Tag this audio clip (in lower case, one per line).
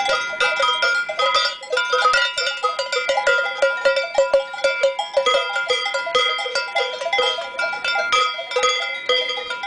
bovinae cowbell